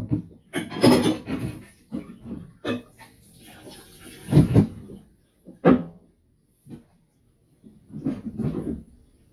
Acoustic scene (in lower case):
kitchen